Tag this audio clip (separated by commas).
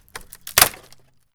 Crack, Wood